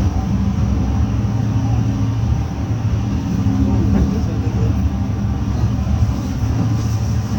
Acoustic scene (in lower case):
bus